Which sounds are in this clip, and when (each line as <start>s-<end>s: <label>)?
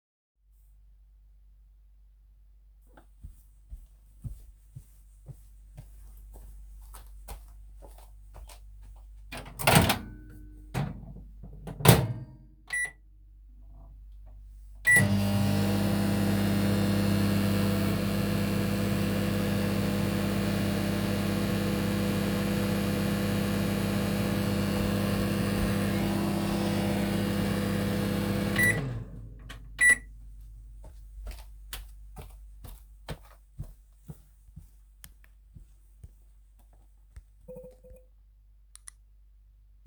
3.1s-3.4s: footsteps
3.7s-3.9s: footsteps
4.1s-4.5s: footsteps
4.6s-5.1s: footsteps
5.3s-5.5s: footsteps
5.7s-6.0s: footsteps
6.1s-6.5s: footsteps
8.1s-8.5s: footsteps
14.8s-29.1s: microwave
31.2s-31.5s: footsteps
31.7s-32.0s: footsteps
32.1s-32.6s: footsteps
32.6s-33.0s: footsteps
33.0s-33.3s: footsteps
33.5s-33.8s: footsteps
34.0s-34.2s: footsteps
34.4s-34.7s: footsteps
34.9s-35.3s: footsteps